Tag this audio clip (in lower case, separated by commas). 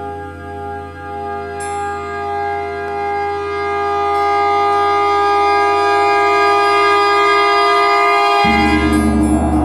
gong